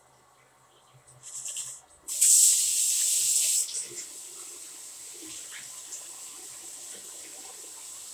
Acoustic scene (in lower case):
restroom